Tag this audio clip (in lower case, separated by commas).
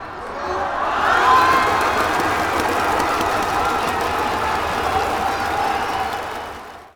crowd, human group actions